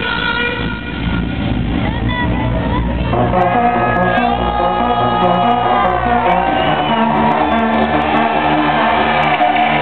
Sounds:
Music, Exciting music, Soundtrack music, Blues

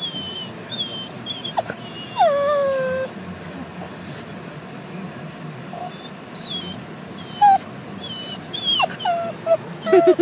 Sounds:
dog whimpering

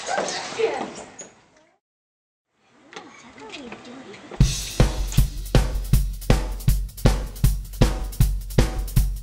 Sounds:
Music, Speech

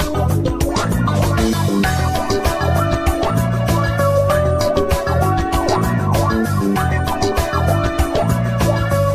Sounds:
Music

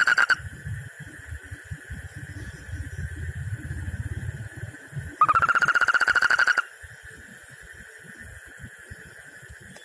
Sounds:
frog croaking

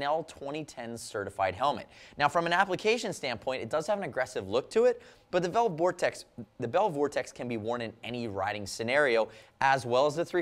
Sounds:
Speech

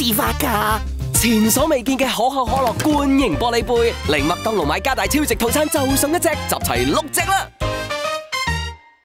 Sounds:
Speech, Music

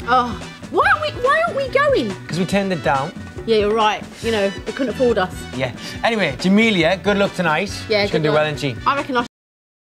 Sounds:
Music, Speech

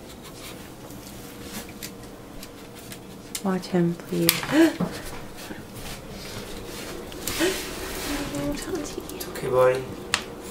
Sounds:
Speech

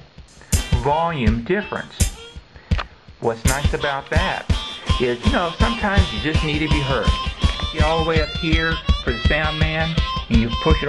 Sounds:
Speech, inside a small room, Music

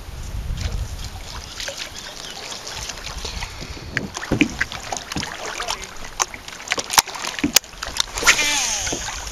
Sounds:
Boat, kayak

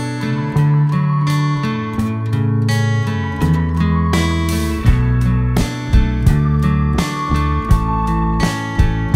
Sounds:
Music

